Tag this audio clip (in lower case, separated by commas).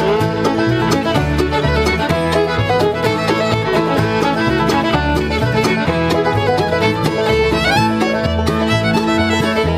musical instrument, violin, music